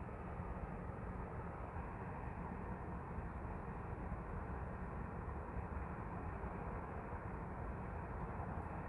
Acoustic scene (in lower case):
street